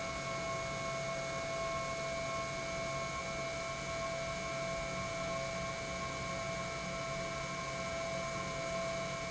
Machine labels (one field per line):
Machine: pump